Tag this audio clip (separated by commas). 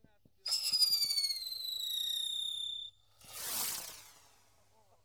Fireworks, Explosion